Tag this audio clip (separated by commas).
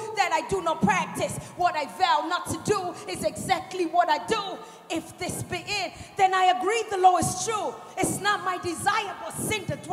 Speech